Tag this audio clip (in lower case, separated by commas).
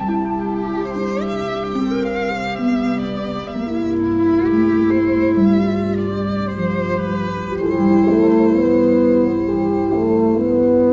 music, bowed string instrument